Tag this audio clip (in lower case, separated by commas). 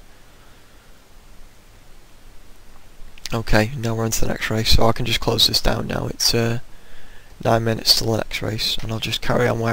speech